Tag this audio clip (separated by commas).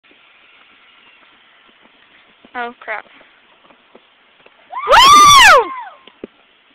Clip-clop, Speech